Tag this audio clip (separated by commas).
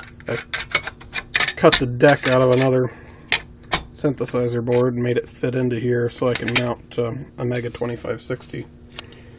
Speech